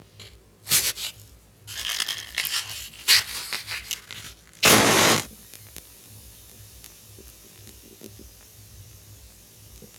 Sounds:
fire

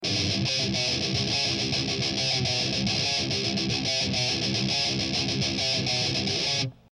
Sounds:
music, musical instrument, guitar, plucked string instrument

